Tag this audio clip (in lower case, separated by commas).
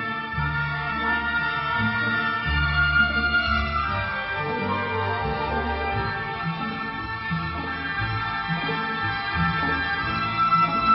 music